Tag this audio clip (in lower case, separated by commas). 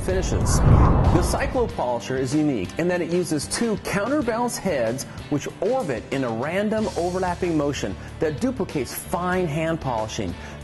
speech, music